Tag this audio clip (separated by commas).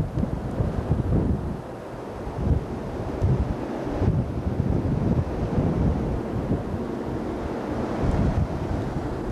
Wind noise (microphone), wind noise, Wind